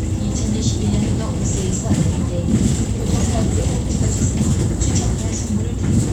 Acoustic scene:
bus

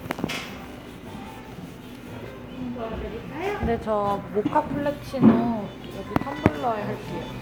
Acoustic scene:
cafe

